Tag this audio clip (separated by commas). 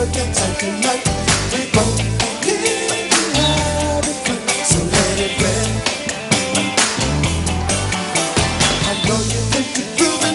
Music